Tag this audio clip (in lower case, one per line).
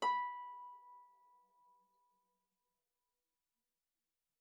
musical instrument
harp
music